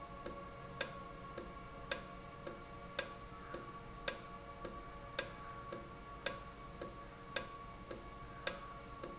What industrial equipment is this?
valve